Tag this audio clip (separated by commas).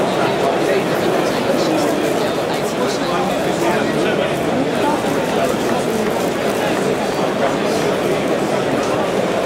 Speech